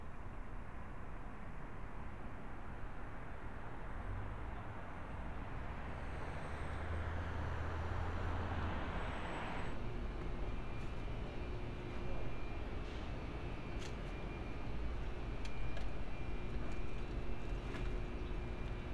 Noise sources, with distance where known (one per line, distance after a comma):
background noise